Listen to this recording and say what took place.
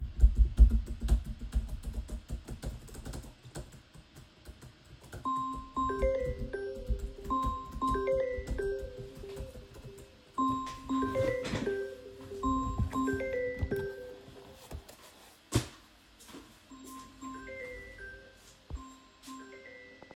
I got a call when I was doing doing work on my laptop